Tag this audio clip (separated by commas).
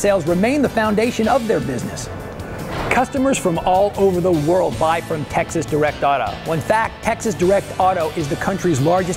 Speech, Music